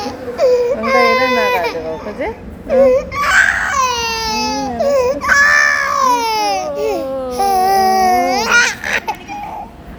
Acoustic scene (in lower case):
subway station